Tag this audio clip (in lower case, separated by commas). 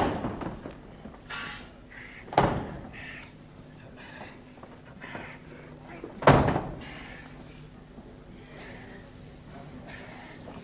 inside a large room or hall, speech, slam